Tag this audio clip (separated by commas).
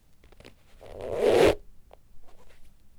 Squeak